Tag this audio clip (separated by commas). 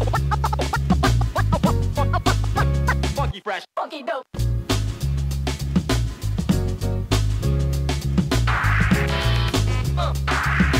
disc scratching